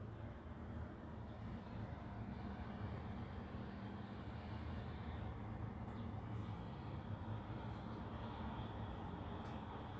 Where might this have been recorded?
in a residential area